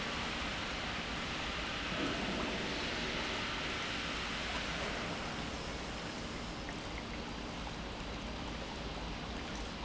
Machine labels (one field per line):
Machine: pump